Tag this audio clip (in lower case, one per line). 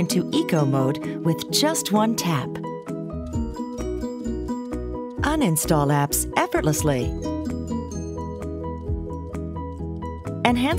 music
speech